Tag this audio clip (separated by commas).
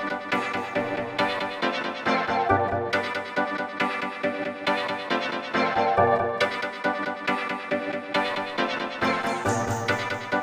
Music, Electronic music